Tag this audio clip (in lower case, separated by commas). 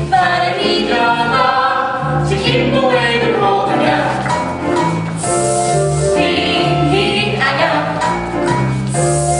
music, hiss